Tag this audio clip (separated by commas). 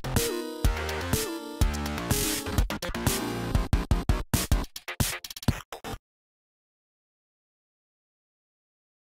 Music, Sound effect